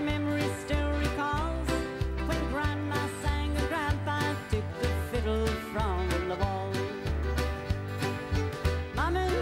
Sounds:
musical instrument, music, fiddle

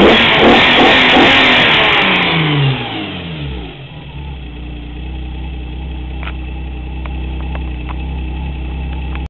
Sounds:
vehicle, medium engine (mid frequency), revving, engine

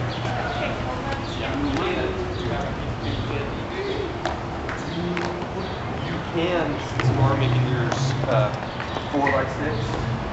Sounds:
rustle, speech

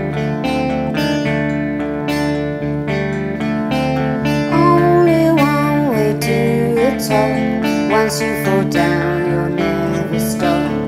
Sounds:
music

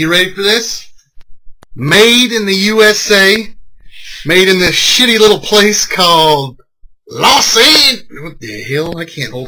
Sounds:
speech

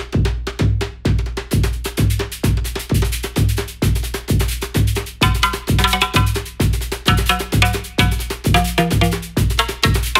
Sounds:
music, sampler

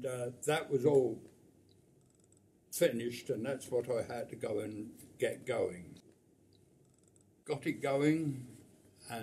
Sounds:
speech

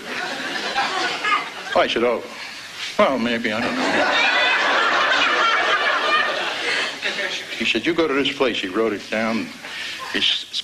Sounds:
speech

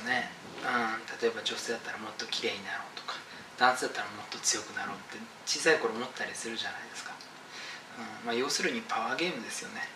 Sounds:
speech, inside a small room

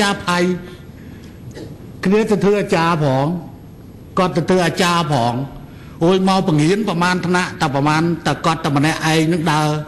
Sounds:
man speaking, speech, monologue

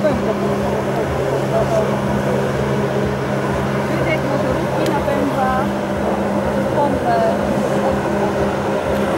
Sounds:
speech

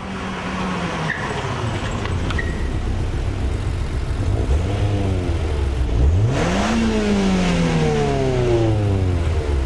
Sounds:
outside, urban or man-made, car

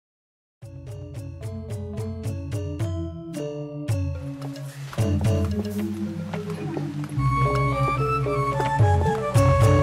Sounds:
music

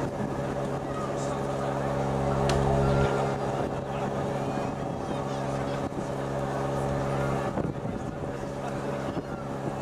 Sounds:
speech

